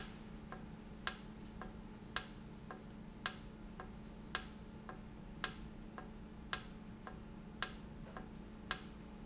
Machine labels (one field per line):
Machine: valve